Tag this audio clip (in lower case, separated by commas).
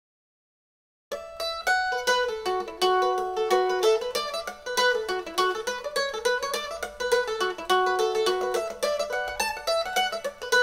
music, mandolin